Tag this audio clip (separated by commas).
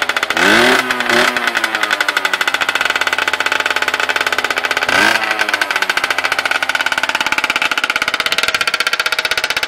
Rattle